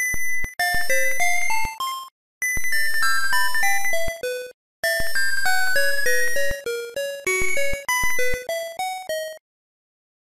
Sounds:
Music

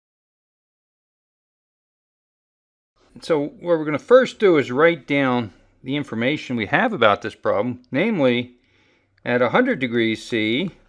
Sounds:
Speech

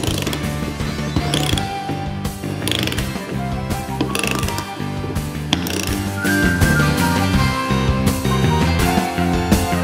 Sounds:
pawl, Mechanisms

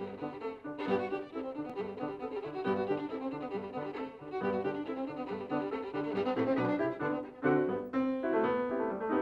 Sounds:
Musical instrument, Bowed string instrument, Music, fiddle

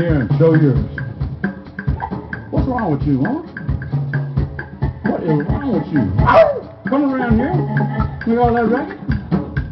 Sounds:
Drum, Musical instrument, Percussion, Drum kit, Speech, Music

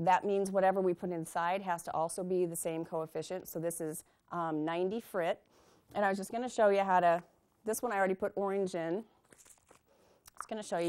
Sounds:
Speech

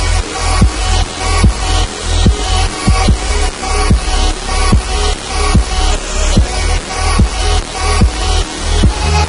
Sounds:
Dubstep, Music

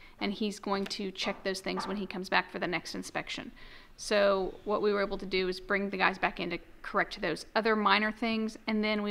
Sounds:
Speech

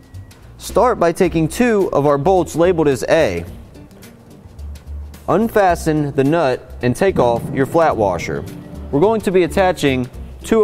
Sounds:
Speech, Music

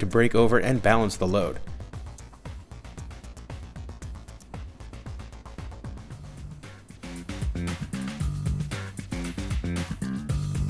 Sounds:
Musical instrument, Drum, Music, Speech

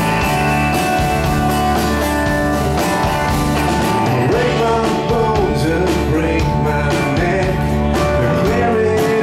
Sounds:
Music, Rhythm and blues

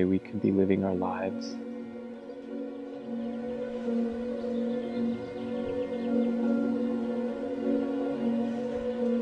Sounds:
Speech, Music

